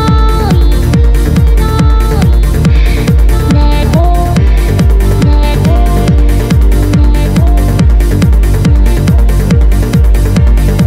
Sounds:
music

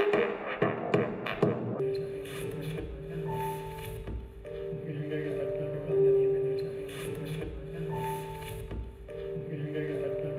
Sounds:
music
speech

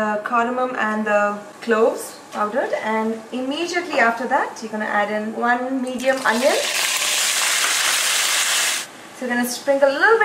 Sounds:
frying (food)

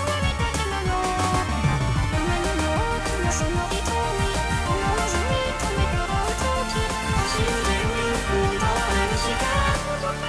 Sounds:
music

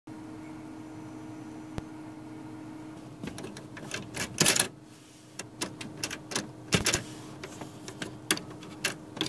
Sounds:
inside a small room
printer

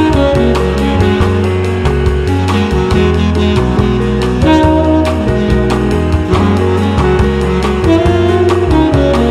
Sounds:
music

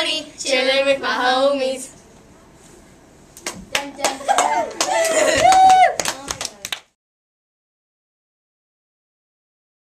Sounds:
speech

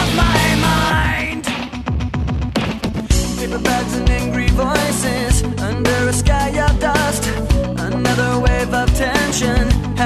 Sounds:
music

